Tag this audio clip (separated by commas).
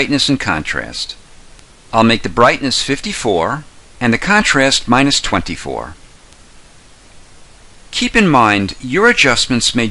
Speech